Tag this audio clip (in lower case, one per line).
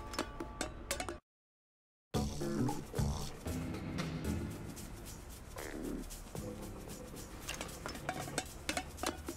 music